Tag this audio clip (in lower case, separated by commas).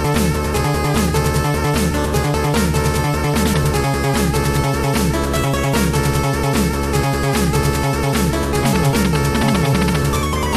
soundtrack music, music